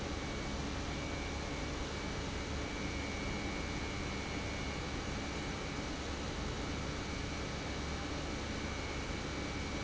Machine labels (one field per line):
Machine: pump